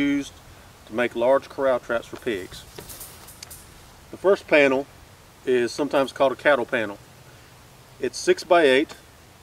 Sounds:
Speech

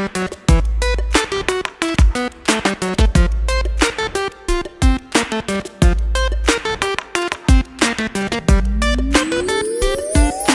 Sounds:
Music

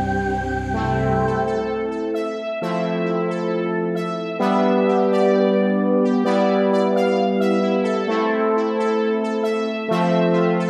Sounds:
playing synthesizer

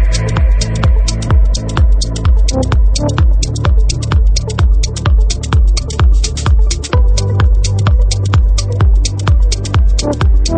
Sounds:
Techno, Music, Electronic music

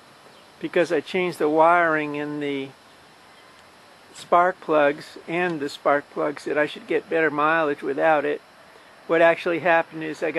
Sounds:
Speech

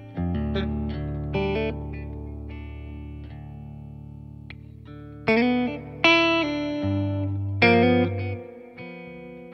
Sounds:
Music

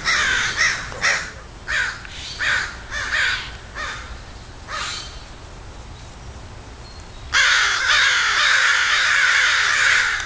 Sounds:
crow cawing

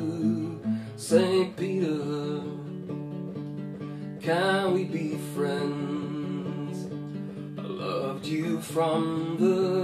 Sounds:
Musical instrument, Plucked string instrument, Singing, Guitar, Acoustic guitar, Music

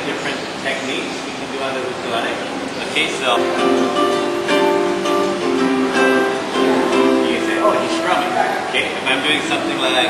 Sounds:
inside a large room or hall, Guitar, Speech, Music, Musical instrument, Ukulele, Plucked string instrument

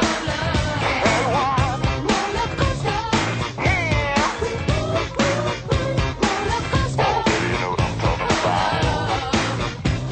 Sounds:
Music

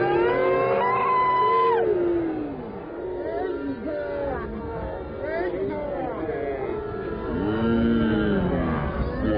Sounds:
Speech

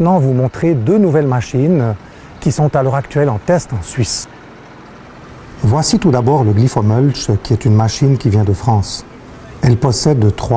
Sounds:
Speech

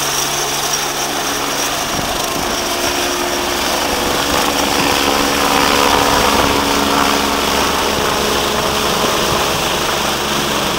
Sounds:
Helicopter, Vehicle

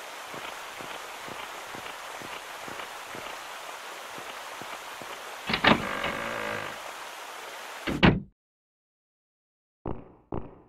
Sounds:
inside a large room or hall

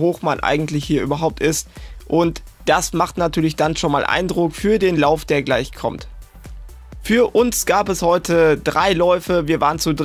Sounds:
Music, Speech

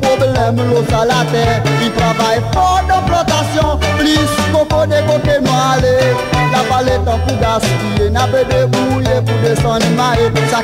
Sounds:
Independent music, Rhythm and blues, Music, Dance music

